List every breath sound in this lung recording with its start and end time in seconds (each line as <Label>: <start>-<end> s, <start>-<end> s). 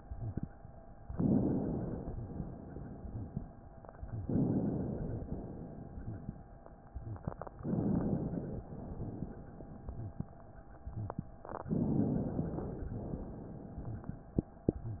Inhalation: 1.12-2.13 s, 4.21-5.24 s, 7.61-8.65 s, 11.67-12.98 s
Exhalation: 2.13-3.42 s, 5.24-6.51 s, 8.65-10.27 s, 12.98-14.42 s